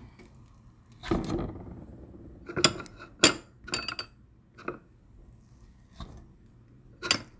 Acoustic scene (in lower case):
kitchen